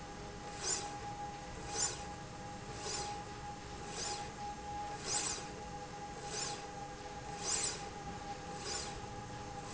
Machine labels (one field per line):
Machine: slide rail